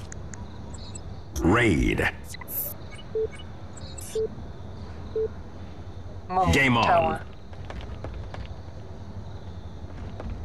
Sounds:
Speech

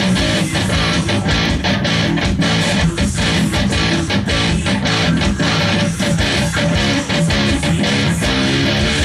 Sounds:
Musical instrument, playing electric guitar, Guitar, Electric guitar, Music, Plucked string instrument

